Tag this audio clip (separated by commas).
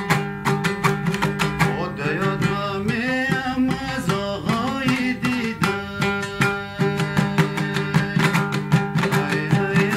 Folk music